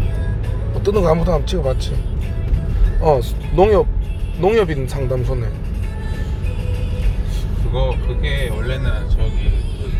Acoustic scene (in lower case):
car